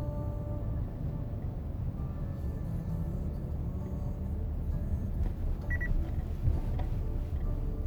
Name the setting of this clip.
car